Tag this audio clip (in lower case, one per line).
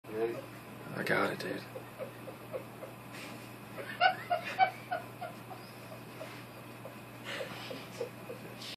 speech